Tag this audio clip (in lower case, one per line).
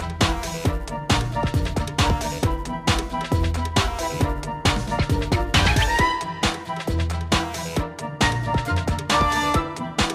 music